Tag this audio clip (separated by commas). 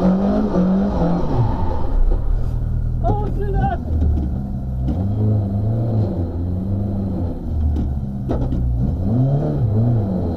Motor vehicle (road), Speech, Vehicle, Car